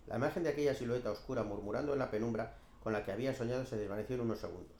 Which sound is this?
speech